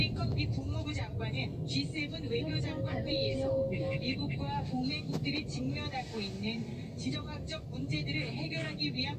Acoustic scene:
car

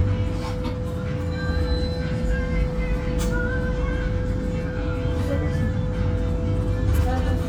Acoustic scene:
bus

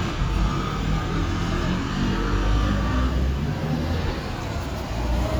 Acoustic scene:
street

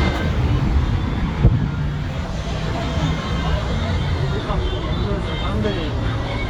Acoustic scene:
street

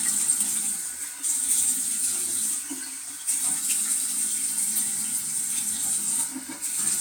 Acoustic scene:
restroom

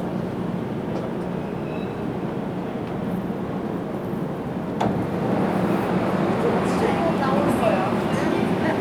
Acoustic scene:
subway train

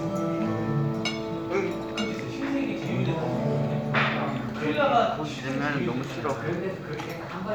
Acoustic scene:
crowded indoor space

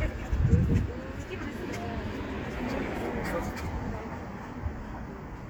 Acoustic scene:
street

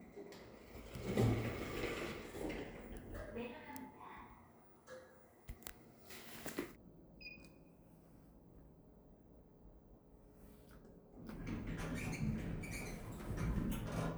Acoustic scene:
elevator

